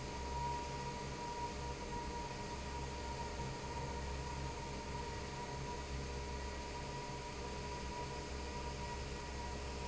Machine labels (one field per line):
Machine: fan